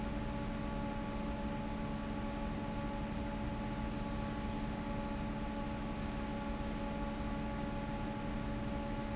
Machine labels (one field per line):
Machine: fan